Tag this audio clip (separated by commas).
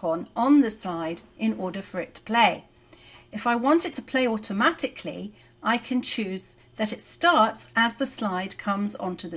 Speech